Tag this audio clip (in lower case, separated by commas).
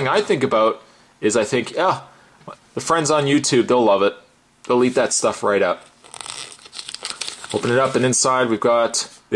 speech